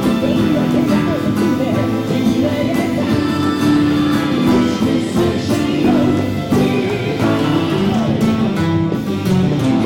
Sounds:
plucked string instrument
guitar
music
strum
musical instrument

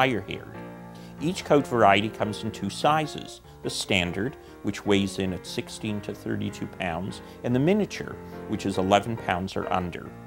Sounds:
speech
music

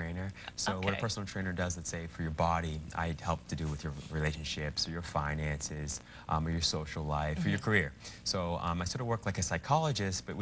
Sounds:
speech

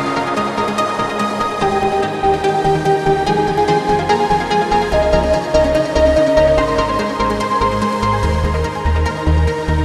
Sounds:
techno
music

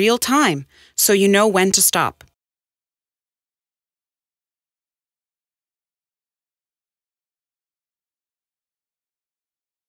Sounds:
speech

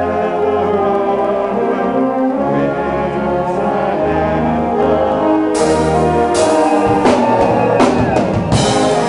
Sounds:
music

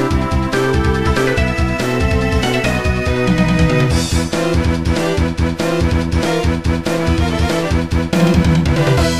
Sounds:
music

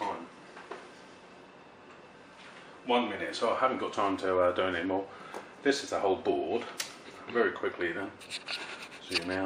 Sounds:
inside a small room
speech

